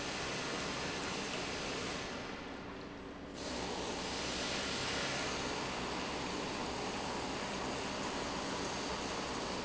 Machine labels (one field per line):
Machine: pump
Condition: normal